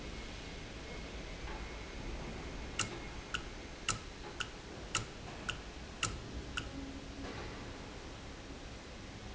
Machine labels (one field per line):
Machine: valve